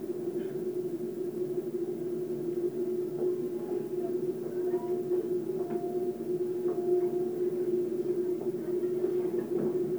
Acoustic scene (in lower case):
subway train